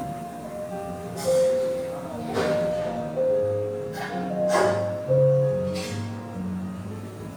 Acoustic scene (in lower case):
cafe